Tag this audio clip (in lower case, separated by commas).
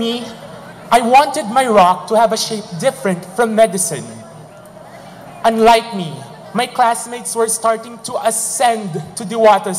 speech, male speech, narration